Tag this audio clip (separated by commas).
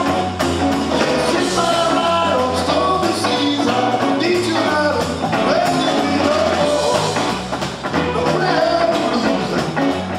Singing, Plucked string instrument, Drum, Music, Guitar, Musical instrument